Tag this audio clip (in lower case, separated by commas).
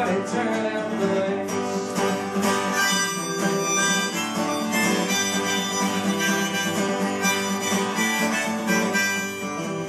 singing, musical instrument, bluegrass, guitar, music